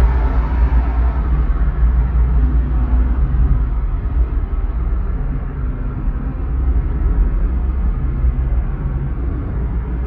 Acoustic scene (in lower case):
car